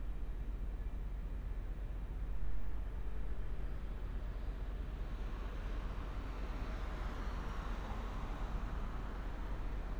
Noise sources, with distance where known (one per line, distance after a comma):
background noise